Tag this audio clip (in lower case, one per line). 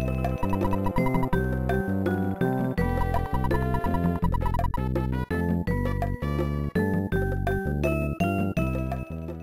music